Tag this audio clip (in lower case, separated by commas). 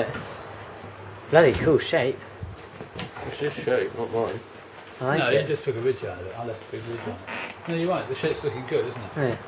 speech